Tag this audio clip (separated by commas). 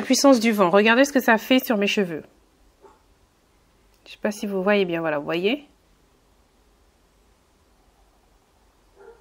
hair dryer drying